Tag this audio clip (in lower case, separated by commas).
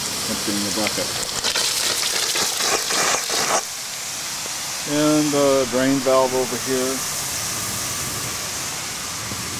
speech, steam